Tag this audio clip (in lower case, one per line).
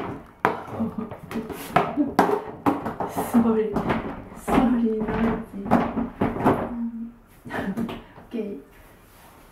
speech